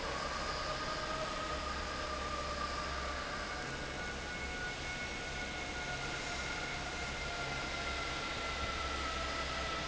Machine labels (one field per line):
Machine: fan